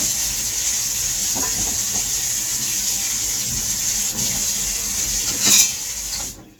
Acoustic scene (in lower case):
kitchen